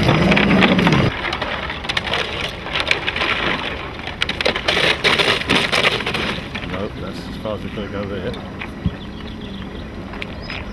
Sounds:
speech, water vehicle

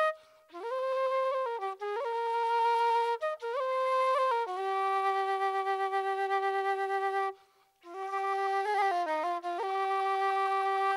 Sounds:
music, traditional music

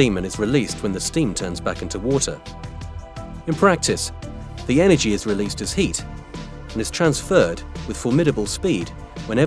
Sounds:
music, speech

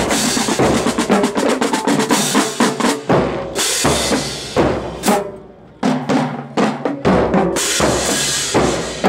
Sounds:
drum, music

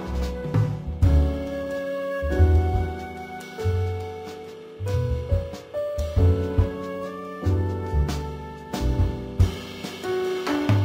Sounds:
music

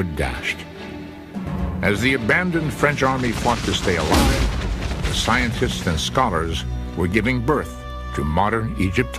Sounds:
speech, music

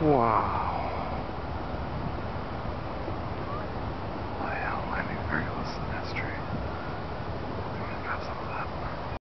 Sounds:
speech

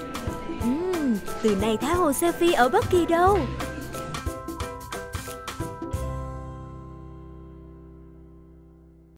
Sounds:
speech, music

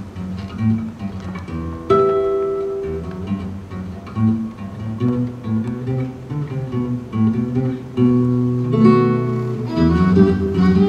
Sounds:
flamenco, music, fiddle, musical instrument

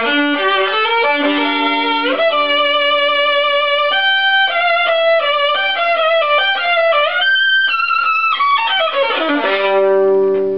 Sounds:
fiddle, music, musical instrument

